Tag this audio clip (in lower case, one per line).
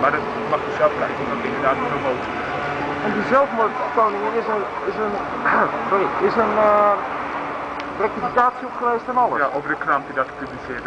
speech